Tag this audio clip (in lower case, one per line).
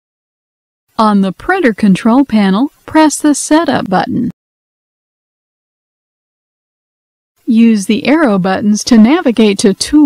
speech